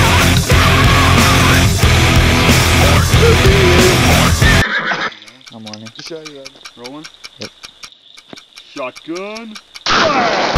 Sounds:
outside, rural or natural
music
speech

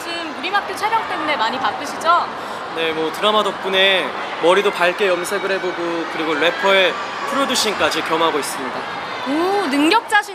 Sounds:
speech

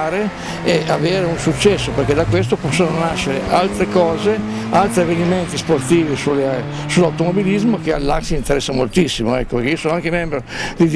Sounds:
car
motor vehicle (road)
vehicle
speech

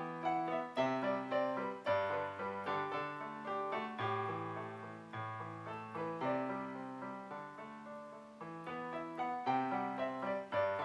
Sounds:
music

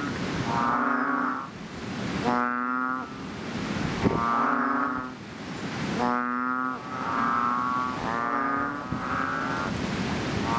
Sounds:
frog

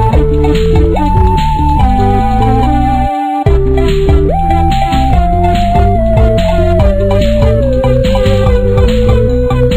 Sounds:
music
theme music

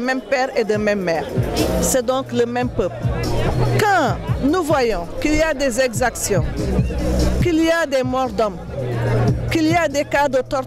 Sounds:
music
speech

